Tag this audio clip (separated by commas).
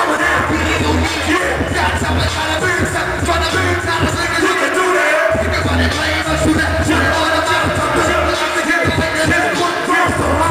Music